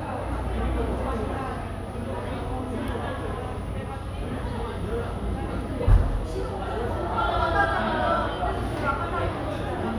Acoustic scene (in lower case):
cafe